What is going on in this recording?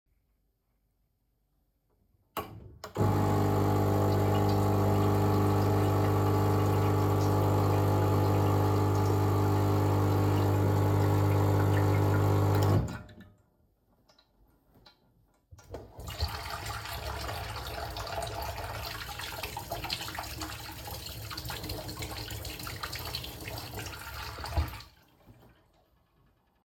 I made a coffee and washed my hands after.